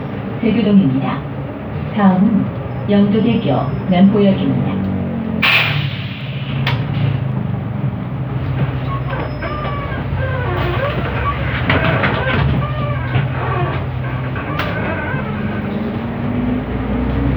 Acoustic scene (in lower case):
bus